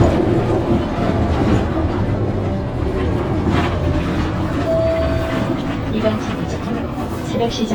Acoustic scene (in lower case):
bus